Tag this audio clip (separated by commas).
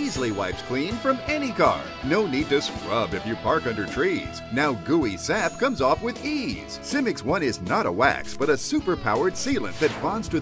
Speech, Music